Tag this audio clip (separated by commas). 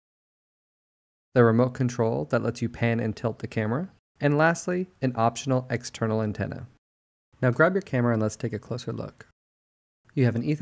Speech